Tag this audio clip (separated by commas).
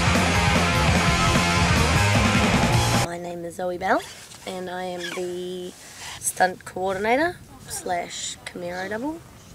Music, Speech